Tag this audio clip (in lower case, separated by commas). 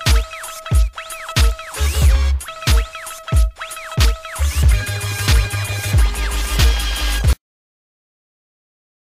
hip hop music, music